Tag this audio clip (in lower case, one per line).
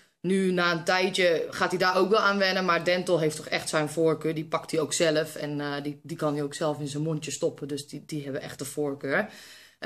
speech